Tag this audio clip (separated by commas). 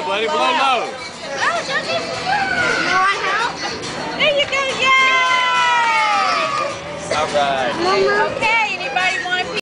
Speech, Music